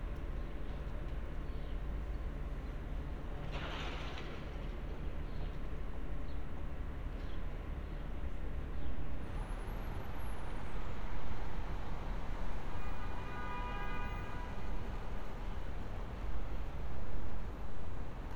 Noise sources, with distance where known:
car horn, far

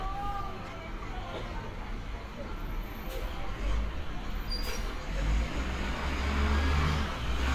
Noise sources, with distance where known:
large-sounding engine, near
unidentified human voice, far

